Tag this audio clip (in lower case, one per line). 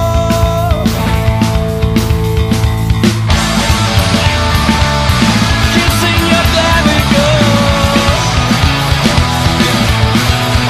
grunge